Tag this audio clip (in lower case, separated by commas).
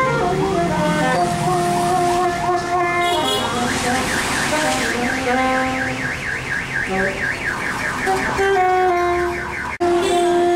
vehicle, music